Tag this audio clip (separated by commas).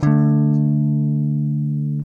Musical instrument, Strum, Guitar, Electric guitar, Music, Plucked string instrument